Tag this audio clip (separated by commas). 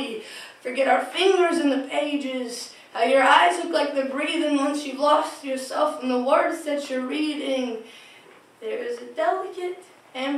Speech